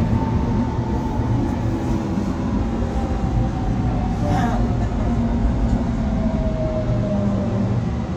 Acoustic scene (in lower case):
subway train